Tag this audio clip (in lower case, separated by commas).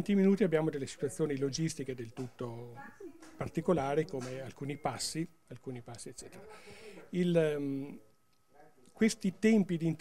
speech